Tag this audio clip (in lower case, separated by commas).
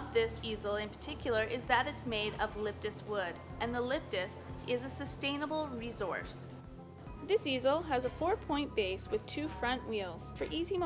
speech, music